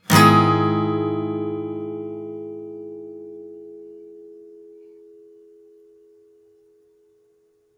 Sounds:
Musical instrument, Music, Plucked string instrument, Guitar, Acoustic guitar

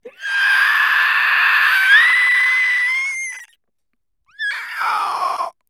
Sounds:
Human voice, Screaming, Screech

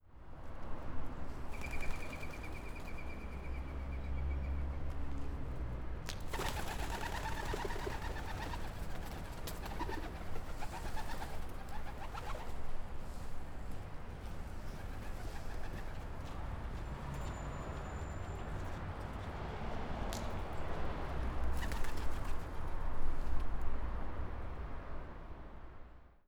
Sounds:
Animal, Wild animals, Bird

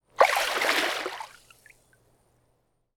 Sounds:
Water, Liquid, splatter

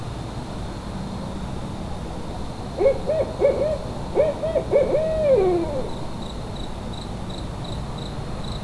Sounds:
Animal, Bird, Insect, Wild animals, Cricket

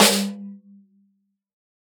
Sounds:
Drum, Music, Snare drum, Musical instrument, Percussion

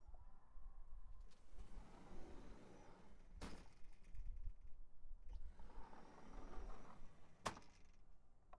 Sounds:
Door, Sliding door, home sounds

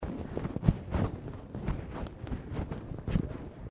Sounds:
Wind

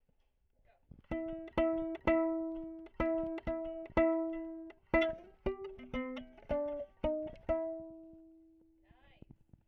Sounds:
Musical instrument, Music, Plucked string instrument

